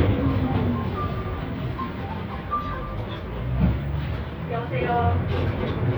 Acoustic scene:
bus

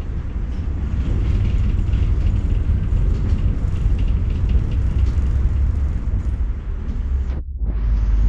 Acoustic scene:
bus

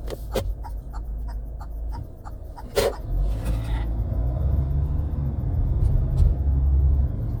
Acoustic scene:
car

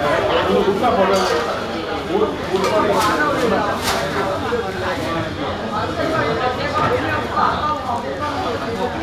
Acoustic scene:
crowded indoor space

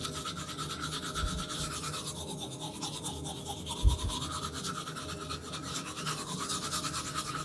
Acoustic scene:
restroom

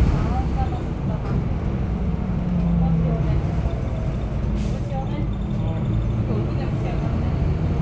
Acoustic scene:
bus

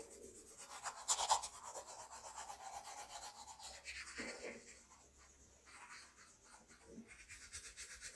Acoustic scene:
restroom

